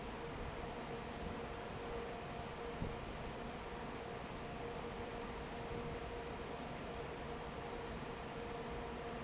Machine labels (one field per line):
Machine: fan